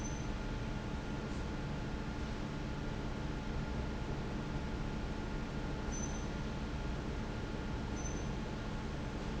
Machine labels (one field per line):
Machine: fan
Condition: abnormal